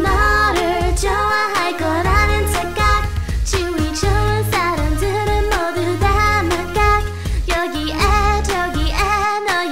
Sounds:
music

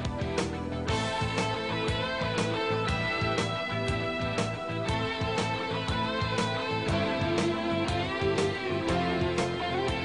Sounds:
music

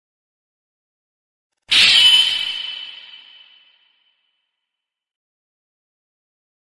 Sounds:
sound effect

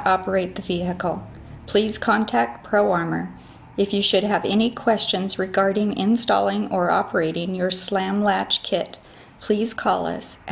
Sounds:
speech

